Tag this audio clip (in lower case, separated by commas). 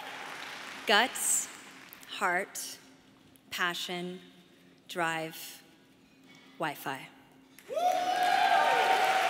speech, monologue, female speech